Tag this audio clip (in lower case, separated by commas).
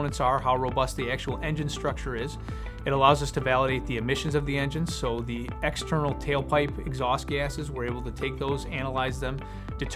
music, speech